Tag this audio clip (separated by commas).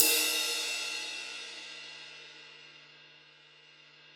Crash cymbal, Music, Cymbal, Musical instrument, Percussion